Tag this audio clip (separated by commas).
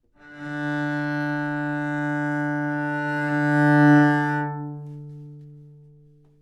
Musical instrument, Bowed string instrument, Music